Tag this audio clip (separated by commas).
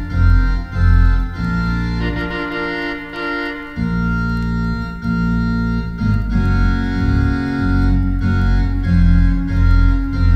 Music